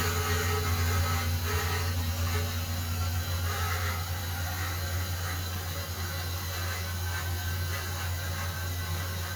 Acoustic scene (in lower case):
restroom